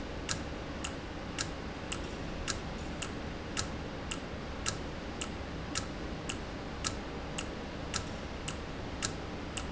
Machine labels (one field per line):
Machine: valve